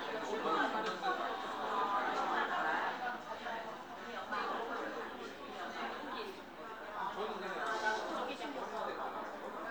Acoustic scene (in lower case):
crowded indoor space